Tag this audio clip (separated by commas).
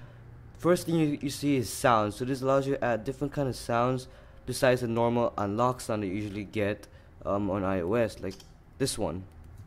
Speech